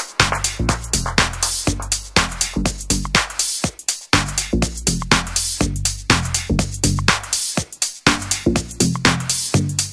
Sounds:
music

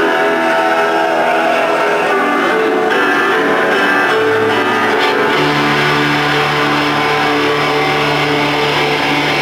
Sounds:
music
rhythm and blues

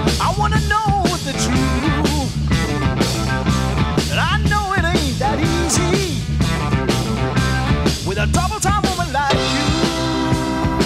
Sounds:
speech
music

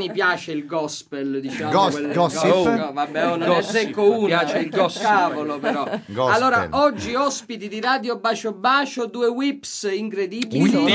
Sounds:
speech

